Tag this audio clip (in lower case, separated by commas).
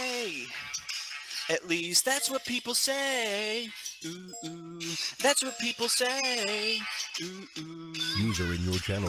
male singing, speech, music